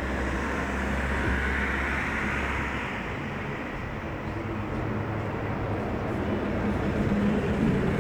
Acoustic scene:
street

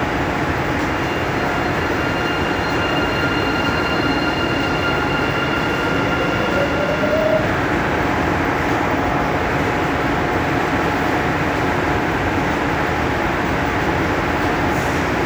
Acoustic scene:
subway station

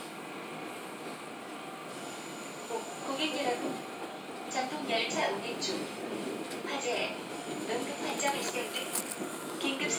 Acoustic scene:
subway train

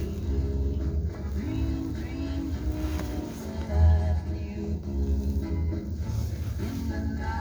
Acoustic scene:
car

